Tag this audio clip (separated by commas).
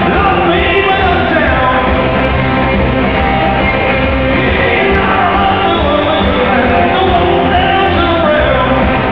Music, Punk rock, Progressive rock